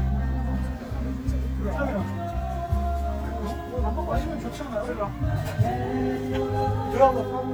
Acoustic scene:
park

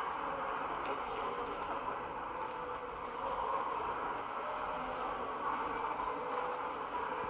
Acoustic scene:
subway station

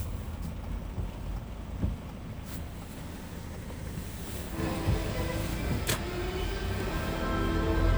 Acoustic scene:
car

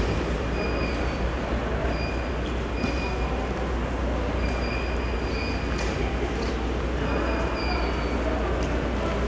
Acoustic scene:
subway station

